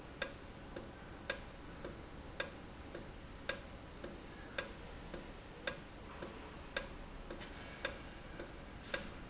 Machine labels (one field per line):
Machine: valve